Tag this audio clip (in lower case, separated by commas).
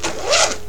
domestic sounds, zipper (clothing)